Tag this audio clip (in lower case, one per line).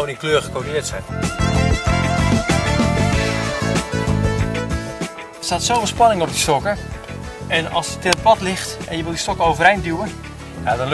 music
speech